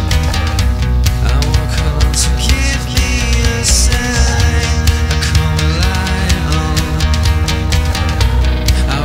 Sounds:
Drum, Music, Drum kit, Musical instrument

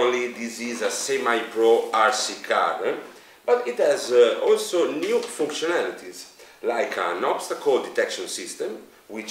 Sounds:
Speech

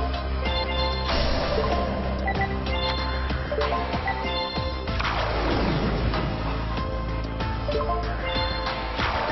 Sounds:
Music

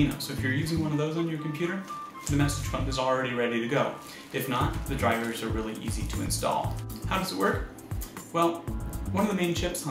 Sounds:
Speech, Music

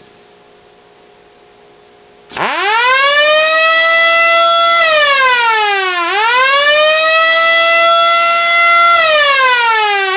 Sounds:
Civil defense siren, Siren

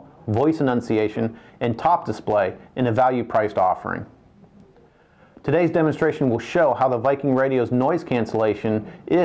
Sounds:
Speech

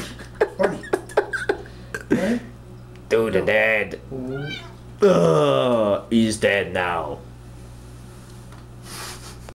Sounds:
pets, Cat, Speech, Animal, Meow

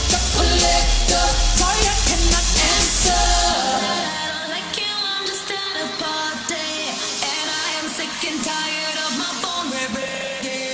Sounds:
Singing, Pop music

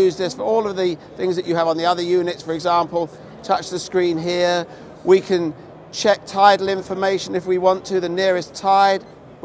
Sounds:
Speech

